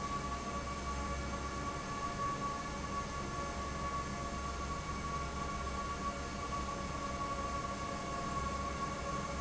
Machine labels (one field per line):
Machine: fan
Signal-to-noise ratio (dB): -6 dB